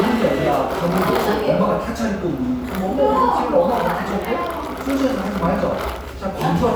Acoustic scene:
cafe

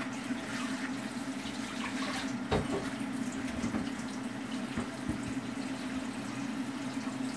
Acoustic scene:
kitchen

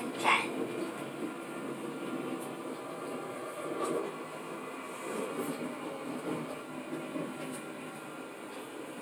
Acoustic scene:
subway train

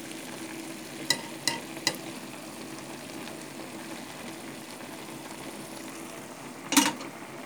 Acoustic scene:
kitchen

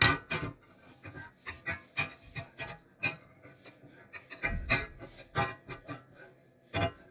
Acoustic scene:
kitchen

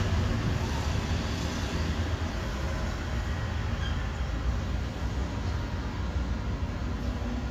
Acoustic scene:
residential area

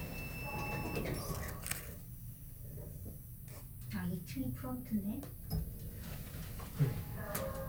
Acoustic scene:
elevator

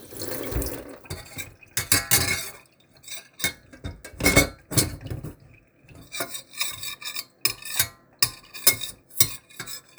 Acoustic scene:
kitchen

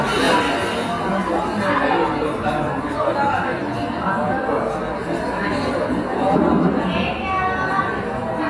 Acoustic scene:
cafe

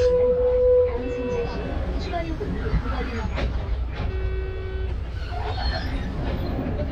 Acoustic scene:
bus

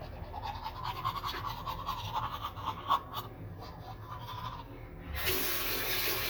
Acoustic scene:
restroom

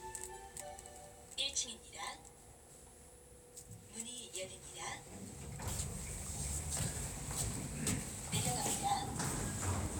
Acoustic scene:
elevator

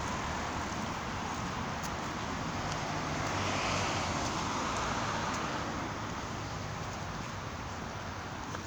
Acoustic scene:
street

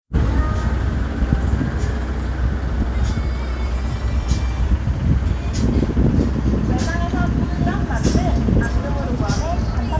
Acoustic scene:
street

